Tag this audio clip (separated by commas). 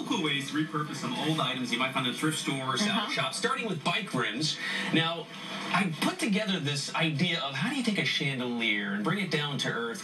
Speech